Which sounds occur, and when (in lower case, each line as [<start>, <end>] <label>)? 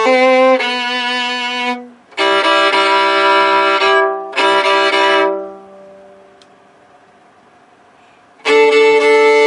[0.00, 6.31] music
[0.00, 9.45] mechanisms
[6.34, 6.40] tick
[7.91, 8.21] breathing
[8.39, 9.45] music